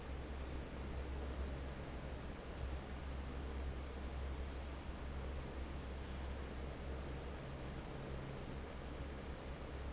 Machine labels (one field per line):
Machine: fan